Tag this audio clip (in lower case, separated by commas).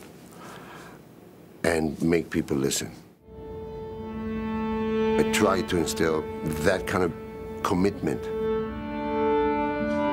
fiddle, musical instrument, bowed string instrument, music, speech